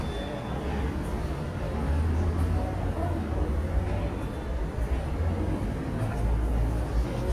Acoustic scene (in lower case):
subway station